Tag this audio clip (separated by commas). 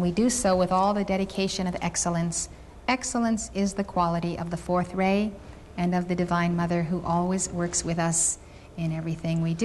inside a large room or hall, Speech